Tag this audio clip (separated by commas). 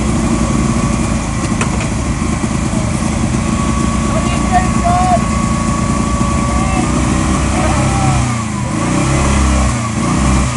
Speech